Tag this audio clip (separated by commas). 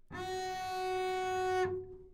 Musical instrument, Bowed string instrument, Music